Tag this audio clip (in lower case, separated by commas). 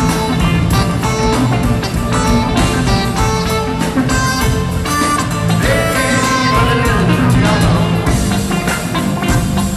music, speech